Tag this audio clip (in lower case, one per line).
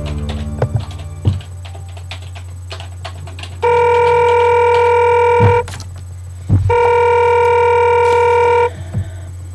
telephone bell ringing